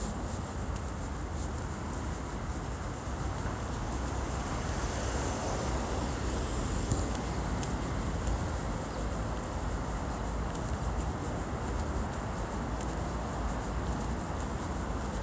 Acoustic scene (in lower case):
street